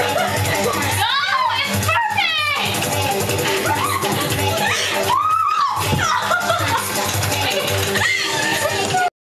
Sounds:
Electronic music, Speech, Techno, Music

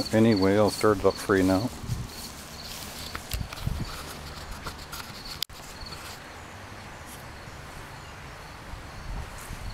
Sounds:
Speech

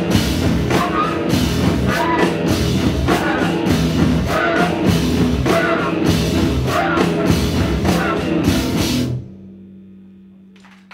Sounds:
Singing, Music, Drum, Guitar, Percussion, Drum kit, Musical instrument

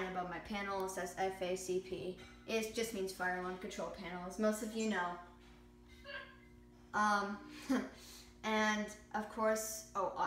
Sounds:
Speech

